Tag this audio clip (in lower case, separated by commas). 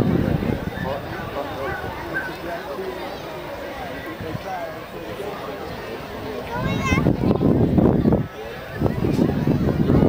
speech